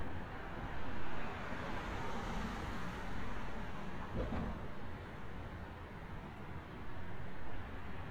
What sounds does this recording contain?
medium-sounding engine